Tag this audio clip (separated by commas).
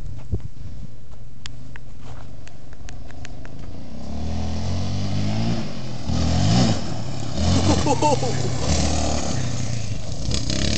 Vehicle, Motorcycle